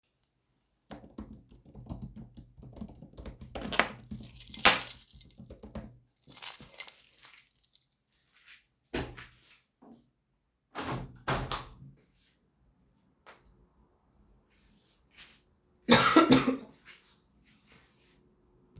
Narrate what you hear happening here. I type on my keyboard while picking up the keys from the table, afterwards I go and open the window.